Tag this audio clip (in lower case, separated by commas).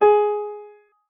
piano, music, keyboard (musical), musical instrument